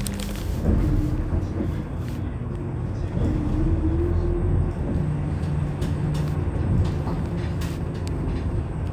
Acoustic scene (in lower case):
bus